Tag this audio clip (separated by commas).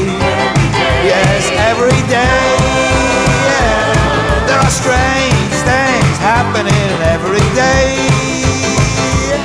Music, Independent music, Singing, Guitar